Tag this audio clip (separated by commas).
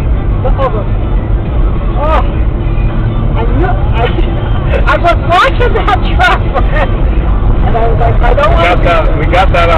Vehicle, Music, Speech